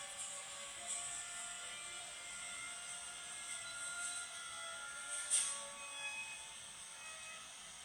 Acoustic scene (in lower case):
cafe